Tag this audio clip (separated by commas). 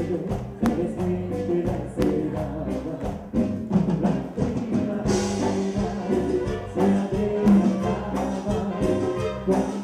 Music